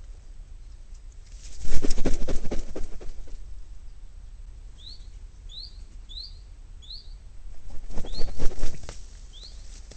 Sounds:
bird, bird chirping, bird song, chirp

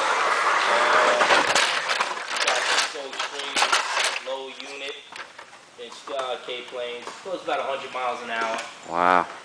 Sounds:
speech

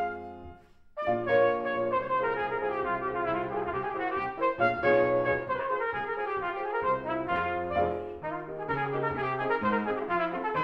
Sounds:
playing cornet

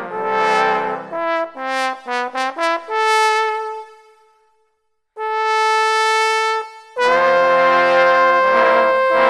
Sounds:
playing trombone

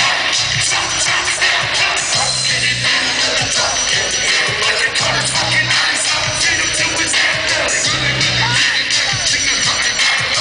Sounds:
music

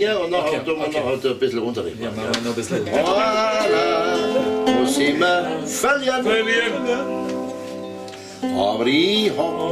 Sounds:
zither, music, speech

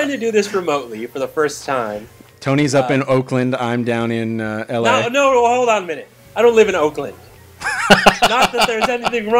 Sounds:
speech

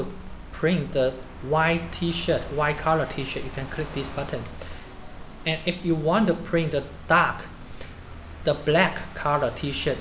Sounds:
speech

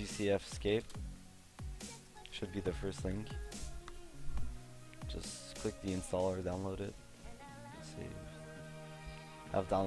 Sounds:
music, speech

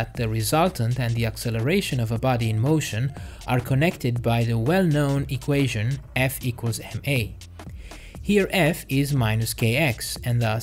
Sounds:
speech, music

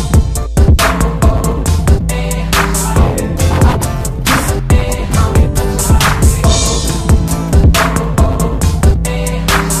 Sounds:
music, dubstep, electronic music, electronica

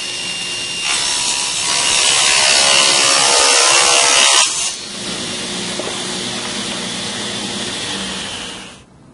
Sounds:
speech

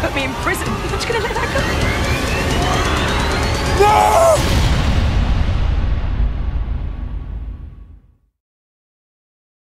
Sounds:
music

